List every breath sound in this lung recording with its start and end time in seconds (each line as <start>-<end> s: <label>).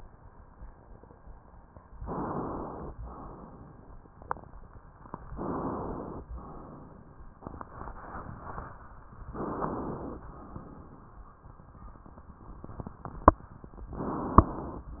2.00-2.94 s: inhalation
2.95-5.35 s: crackles
2.99-4.14 s: exhalation
5.38-6.24 s: inhalation
6.29-7.45 s: exhalation
9.37-10.23 s: inhalation
10.23-11.39 s: exhalation
10.26-13.92 s: crackles